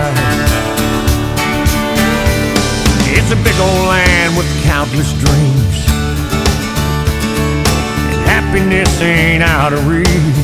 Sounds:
Music

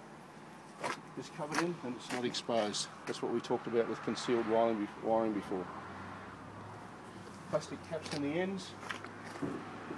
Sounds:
Speech

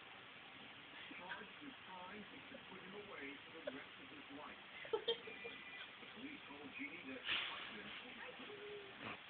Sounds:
Speech

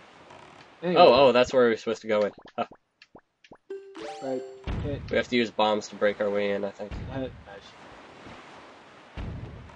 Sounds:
Speech

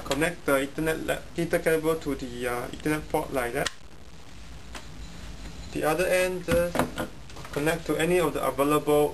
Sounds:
Speech

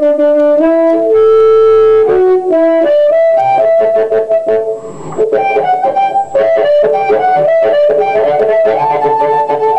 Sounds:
Musical instrument, Music

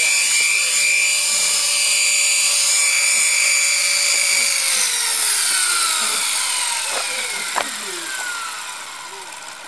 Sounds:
Speech, Helicopter

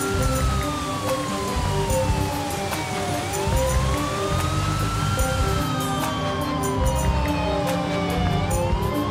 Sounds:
fire truck siren

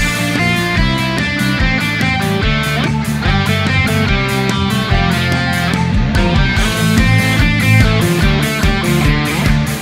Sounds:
Musical instrument, Music, Acoustic guitar, Guitar

